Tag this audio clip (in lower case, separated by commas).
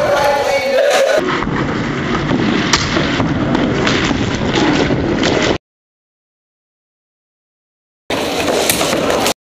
door, speech